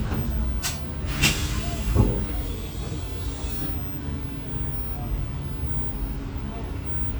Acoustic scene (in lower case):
bus